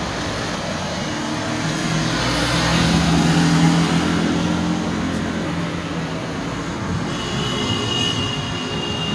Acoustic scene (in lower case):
street